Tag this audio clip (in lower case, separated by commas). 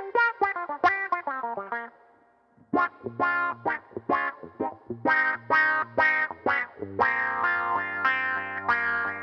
music